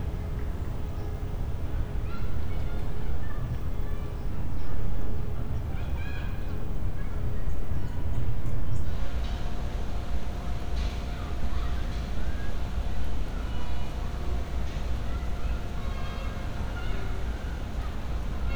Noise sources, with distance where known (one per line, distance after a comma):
person or small group shouting, far